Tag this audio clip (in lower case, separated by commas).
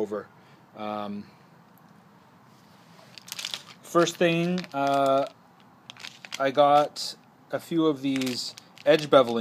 speech